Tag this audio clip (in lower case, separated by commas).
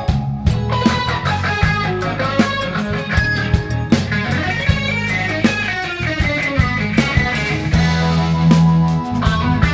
rock music, musical instrument, guitar, music, percussion, psychedelic rock, drum kit